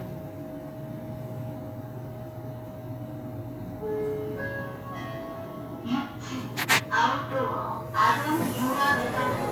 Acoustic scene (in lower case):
elevator